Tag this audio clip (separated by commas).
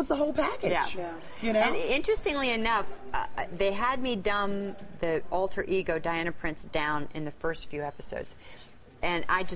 Female speech, Speech